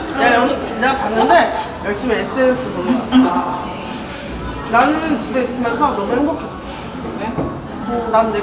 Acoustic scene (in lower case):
cafe